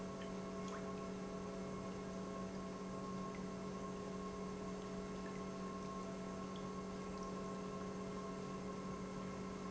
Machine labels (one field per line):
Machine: pump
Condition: normal